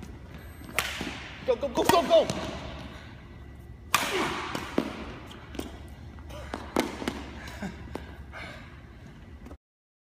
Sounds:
playing badminton

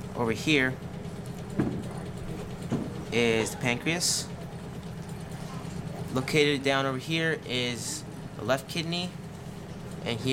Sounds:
speech

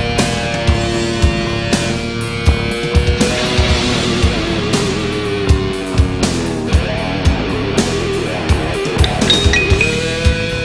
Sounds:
heavy metal
music

